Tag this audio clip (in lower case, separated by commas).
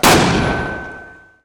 explosion